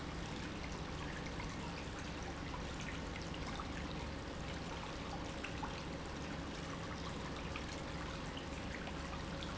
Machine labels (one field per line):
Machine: pump